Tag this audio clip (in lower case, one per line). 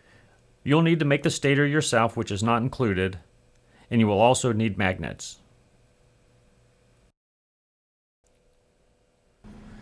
speech